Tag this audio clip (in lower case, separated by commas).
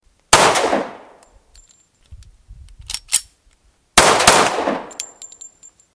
gunshot, explosion